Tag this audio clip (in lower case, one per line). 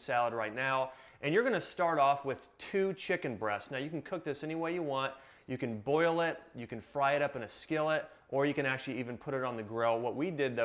speech